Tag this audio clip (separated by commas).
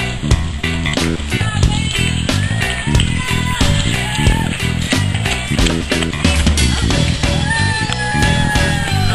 Run, Speech, Music, outside, rural or natural